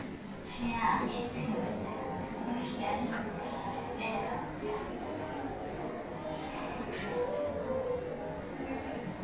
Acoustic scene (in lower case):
elevator